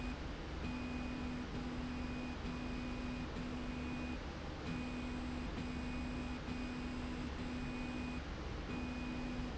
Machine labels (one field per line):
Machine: slide rail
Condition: normal